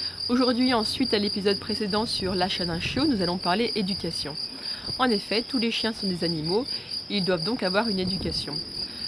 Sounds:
Speech

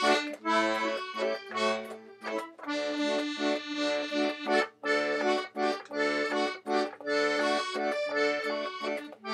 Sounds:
playing accordion

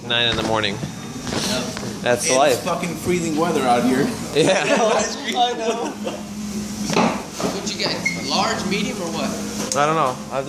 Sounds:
Speech, inside a public space

